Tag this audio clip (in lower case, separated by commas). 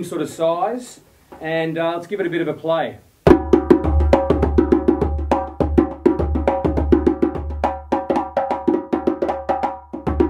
music, speech